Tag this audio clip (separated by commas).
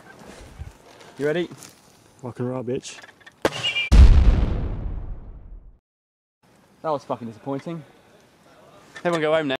Explosion, Burst, Speech